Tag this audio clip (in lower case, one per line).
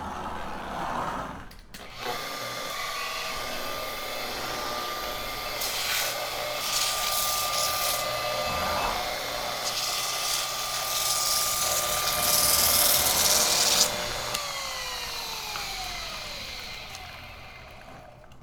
engine